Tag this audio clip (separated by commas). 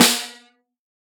Music, Musical instrument, Snare drum, Drum, Percussion